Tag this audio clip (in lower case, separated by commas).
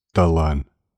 human voice, speech